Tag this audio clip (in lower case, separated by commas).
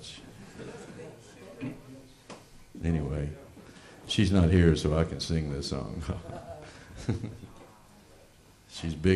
speech